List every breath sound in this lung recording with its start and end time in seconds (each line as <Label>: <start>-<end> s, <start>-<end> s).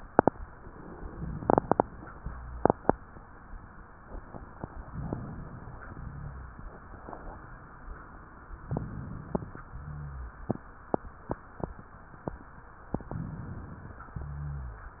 Inhalation: 4.77-5.84 s, 8.58-9.62 s, 12.99-14.01 s
Exhalation: 5.84-6.75 s, 9.70-10.50 s
Rhonchi: 5.83-6.72 s, 9.67-10.32 s
Crackles: 4.74-5.80 s, 8.57-9.61 s